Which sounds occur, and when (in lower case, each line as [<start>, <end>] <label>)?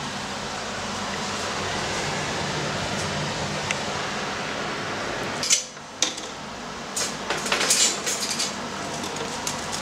[0.00, 9.81] mechanisms
[1.09, 1.17] generic impact sounds
[2.93, 3.04] generic impact sounds
[3.63, 3.76] generic impact sounds
[5.39, 5.63] generic impact sounds
[5.74, 5.80] generic impact sounds
[5.99, 6.27] generic impact sounds
[6.93, 7.07] generic impact sounds
[7.25, 7.93] generic impact sounds
[8.05, 8.45] generic impact sounds
[9.00, 9.30] generic impact sounds
[9.43, 9.57] generic impact sounds
[9.69, 9.81] generic impact sounds